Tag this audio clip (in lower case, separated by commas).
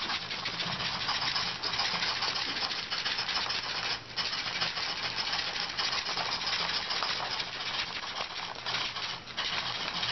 printer